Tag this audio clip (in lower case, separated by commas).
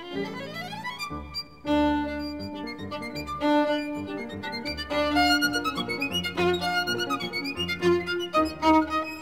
string section